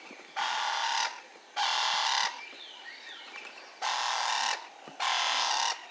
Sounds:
Wild animals, Bird, Animal

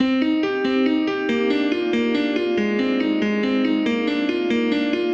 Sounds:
Keyboard (musical), Piano, Musical instrument, Music

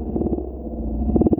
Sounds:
Musical instrument, Music, Wind instrument

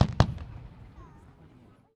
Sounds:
Explosion, Fireworks

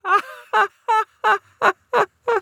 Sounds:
Human voice, Laughter

